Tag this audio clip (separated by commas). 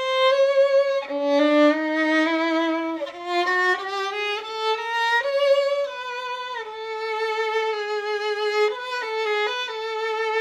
Music, Musical instrument, fiddle